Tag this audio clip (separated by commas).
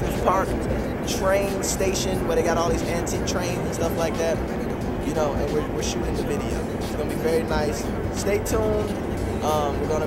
Music, Speech